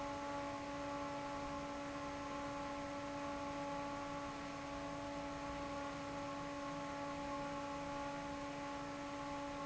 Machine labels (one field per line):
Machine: fan